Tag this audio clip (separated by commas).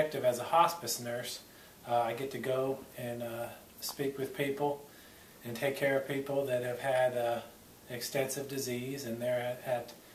Speech, Male speech, monologue